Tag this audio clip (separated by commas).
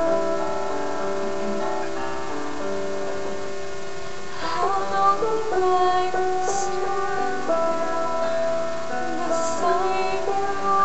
Music, Female singing